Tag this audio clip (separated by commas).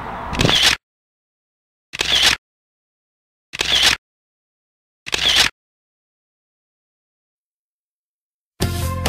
Music, Vehicle